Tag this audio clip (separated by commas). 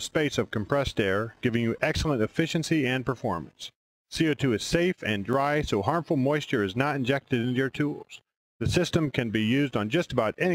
Speech